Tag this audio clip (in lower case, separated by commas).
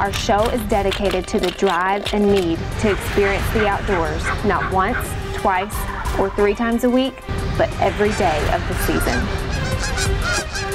music, speech, bird